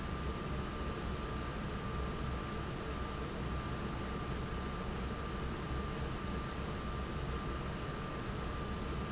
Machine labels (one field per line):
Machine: fan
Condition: normal